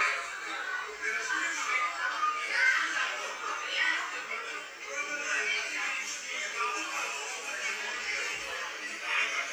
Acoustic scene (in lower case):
crowded indoor space